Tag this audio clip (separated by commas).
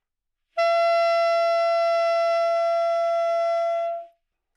Wind instrument, Music, Musical instrument